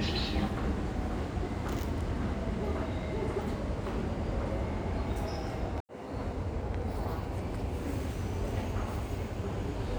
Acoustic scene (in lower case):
subway station